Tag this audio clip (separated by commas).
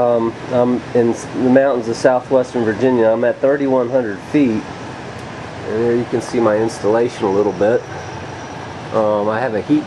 Speech